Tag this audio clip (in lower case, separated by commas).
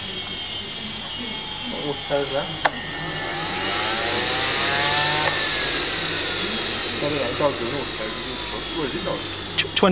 tools, speech